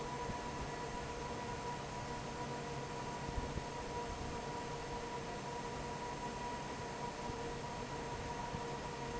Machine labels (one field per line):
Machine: fan